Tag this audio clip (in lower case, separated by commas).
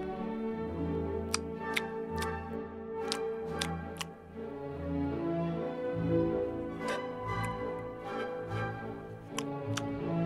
dog, music, pets